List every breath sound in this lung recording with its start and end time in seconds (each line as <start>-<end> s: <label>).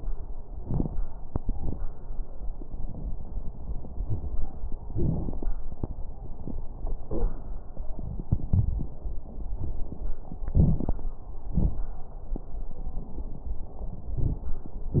10.50-11.01 s: inhalation
10.50-11.01 s: crackles
11.53-11.85 s: exhalation
11.53-11.85 s: crackles